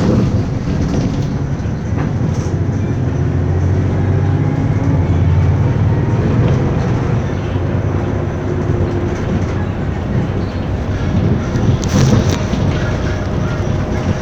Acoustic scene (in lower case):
bus